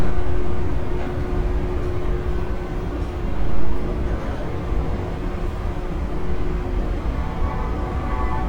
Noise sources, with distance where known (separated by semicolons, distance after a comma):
engine of unclear size